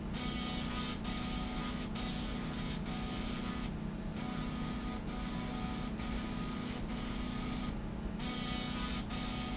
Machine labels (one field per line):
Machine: slide rail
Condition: abnormal